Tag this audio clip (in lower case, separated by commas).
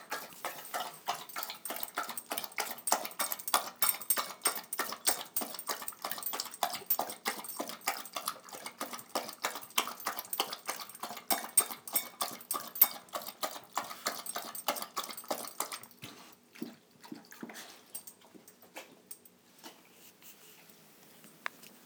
dog, animal, domestic animals